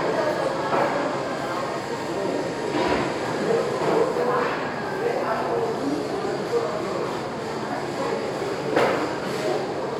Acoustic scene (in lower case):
crowded indoor space